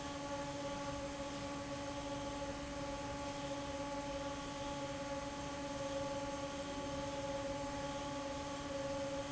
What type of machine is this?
fan